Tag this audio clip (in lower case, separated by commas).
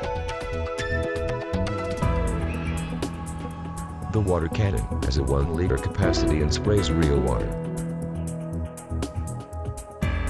speech, music